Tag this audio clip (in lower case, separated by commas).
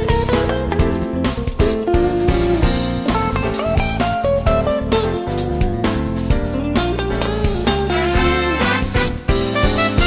music